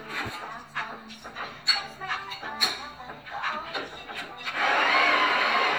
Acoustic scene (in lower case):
cafe